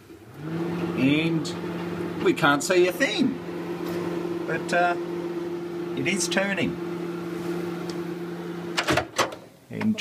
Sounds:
Microwave oven, Speech

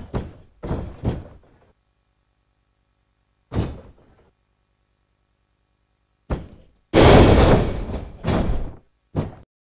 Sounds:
Door, Slam

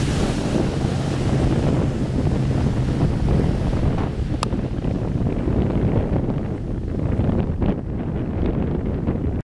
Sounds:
Boat, Motorboat, Vehicle

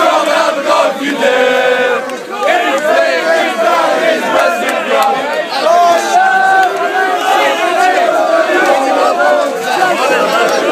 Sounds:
Speech, Male singing

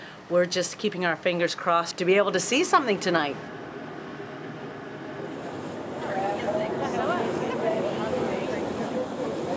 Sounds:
Speech

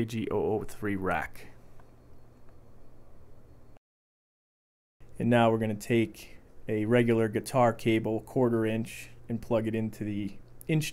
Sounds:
Speech

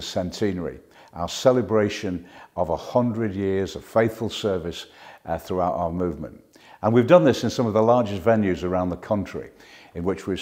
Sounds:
Speech

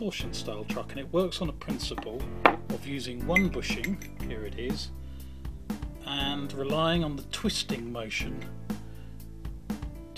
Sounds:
Music, Speech

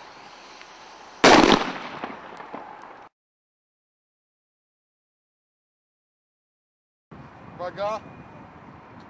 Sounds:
Speech, Firecracker

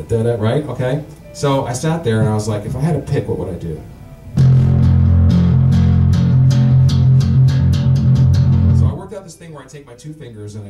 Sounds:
Guitar, Speech, Musical instrument, Plucked string instrument, Bass guitar, Music, Tapping (guitar technique)

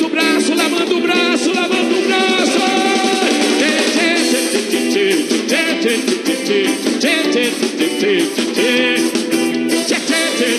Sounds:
Music

